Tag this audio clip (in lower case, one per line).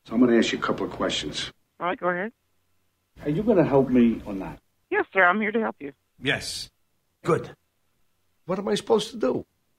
speech